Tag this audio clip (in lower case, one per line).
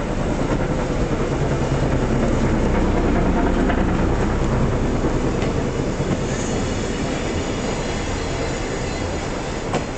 vehicle
rail transport
train wagon
train